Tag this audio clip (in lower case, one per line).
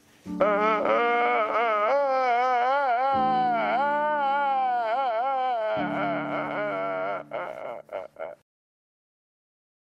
music